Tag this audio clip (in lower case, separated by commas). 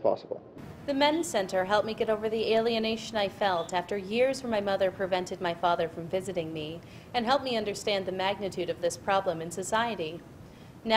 female speech, man speaking, speech